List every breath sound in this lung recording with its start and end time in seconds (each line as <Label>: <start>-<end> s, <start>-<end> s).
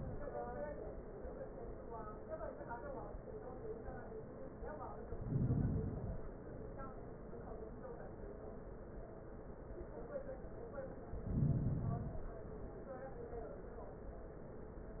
Inhalation: 4.96-6.46 s, 10.98-12.48 s